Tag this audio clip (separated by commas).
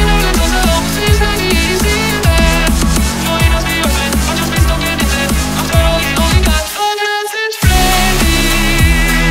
Soundtrack music, Music